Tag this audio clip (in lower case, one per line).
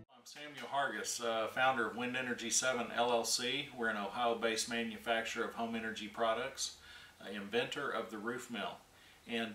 speech